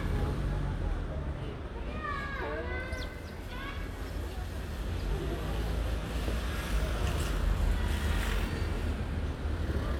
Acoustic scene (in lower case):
residential area